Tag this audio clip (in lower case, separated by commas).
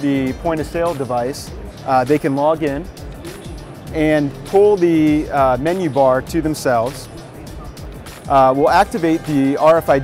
music, speech